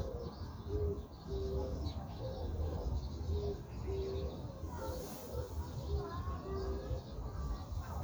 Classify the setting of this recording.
park